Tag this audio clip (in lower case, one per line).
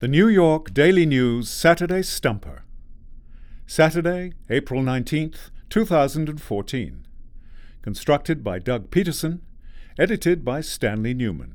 human voice
male speech
speech